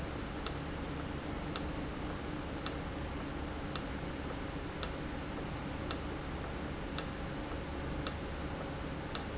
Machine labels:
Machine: valve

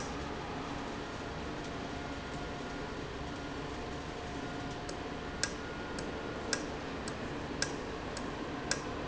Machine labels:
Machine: valve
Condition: normal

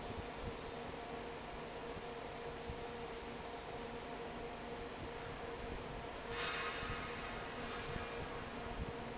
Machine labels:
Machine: fan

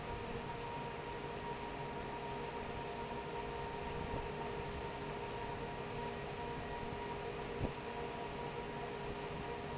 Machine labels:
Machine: fan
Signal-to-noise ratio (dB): 0 dB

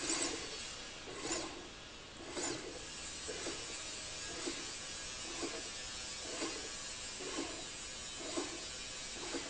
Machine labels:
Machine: slide rail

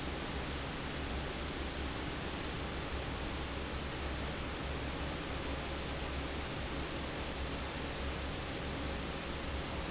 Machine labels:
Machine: fan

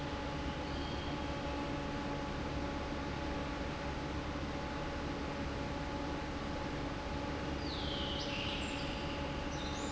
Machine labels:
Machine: fan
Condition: normal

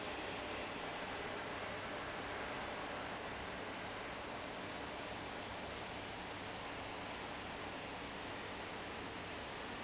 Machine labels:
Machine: fan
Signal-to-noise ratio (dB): 0 dB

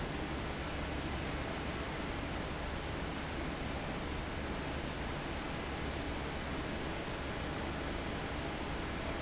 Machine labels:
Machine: fan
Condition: abnormal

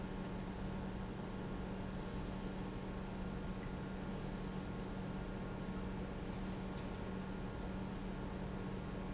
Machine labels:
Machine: pump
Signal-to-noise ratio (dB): 0 dB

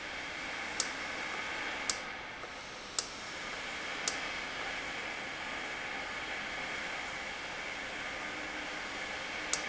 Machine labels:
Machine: valve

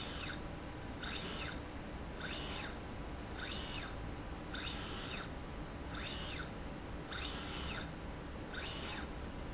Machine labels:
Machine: slide rail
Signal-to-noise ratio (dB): 0 dB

